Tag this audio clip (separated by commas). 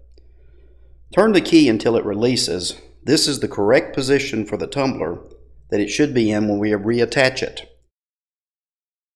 Speech